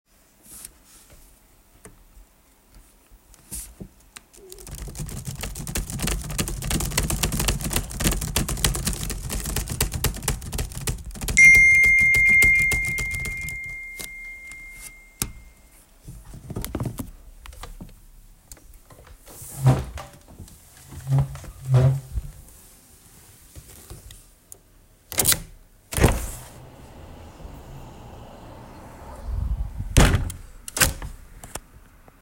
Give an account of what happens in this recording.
The phone stayed on the desk while I typed on the keyboard. A phone notification sounded while I was still typing, and after that I stopped typing, stood up and then I opened and closed the window.